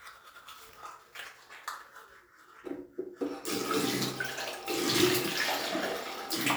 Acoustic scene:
restroom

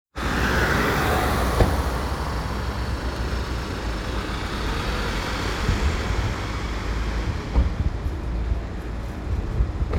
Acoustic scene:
residential area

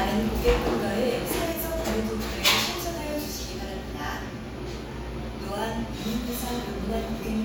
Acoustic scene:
cafe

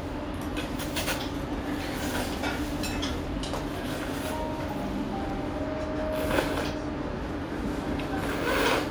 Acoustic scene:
restaurant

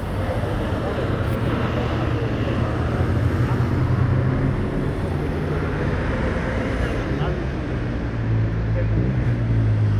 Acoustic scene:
street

